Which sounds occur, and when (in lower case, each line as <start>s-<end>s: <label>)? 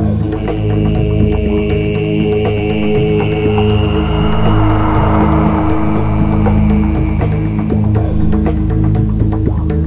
0.0s-9.8s: music
0.0s-9.8s: noise
0.3s-7.8s: chant
3.7s-6.8s: sound effect
7.9s-8.1s: human voice